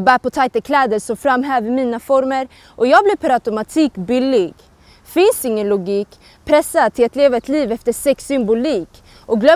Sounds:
speech

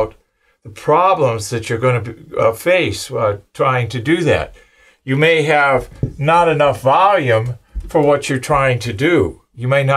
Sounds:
speech

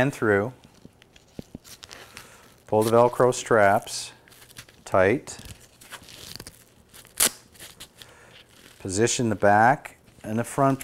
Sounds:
speech

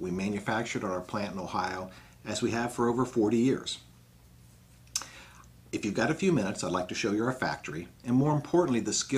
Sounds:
speech

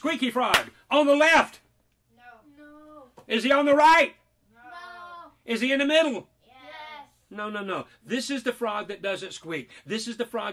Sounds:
speech

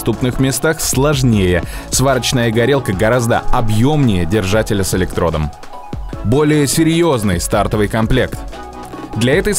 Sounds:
arc welding

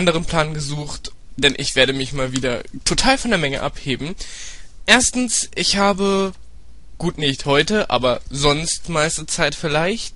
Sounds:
speech

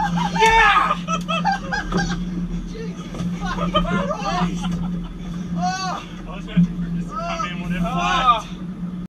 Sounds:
water vehicle
vehicle
speech
motorboat

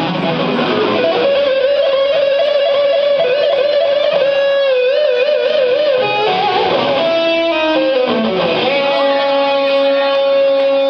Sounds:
musical instrument
music
guitar

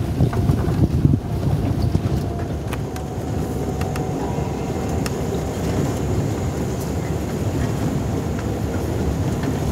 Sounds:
outside, rural or natural

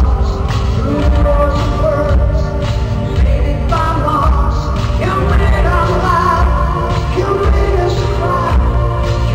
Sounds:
music

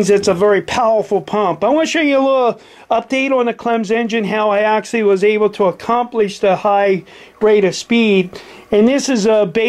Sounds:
speech

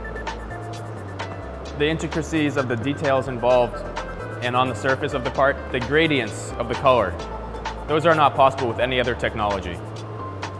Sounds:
music
speech

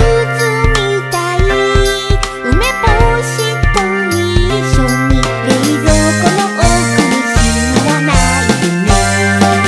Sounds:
music

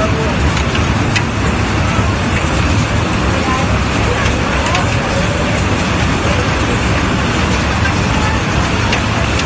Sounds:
hail

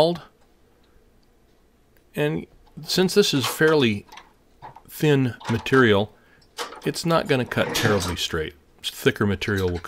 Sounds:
speech

